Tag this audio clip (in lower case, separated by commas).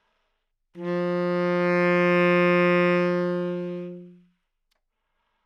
woodwind instrument, musical instrument, music